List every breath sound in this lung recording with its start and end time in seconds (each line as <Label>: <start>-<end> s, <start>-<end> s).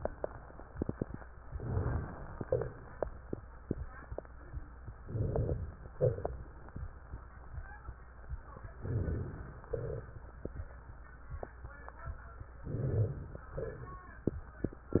Inhalation: 1.45-2.41 s, 5.04-5.79 s, 8.77-9.65 s, 12.64-13.50 s
Exhalation: 2.44-3.40 s, 5.97-6.76 s, 9.73-10.71 s
Crackles: 2.44-3.40 s, 5.97-6.76 s, 9.73-10.71 s